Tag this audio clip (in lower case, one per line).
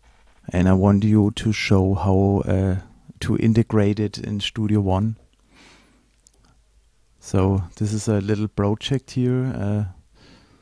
speech